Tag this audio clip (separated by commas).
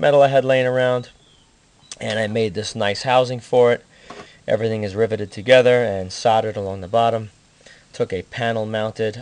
Speech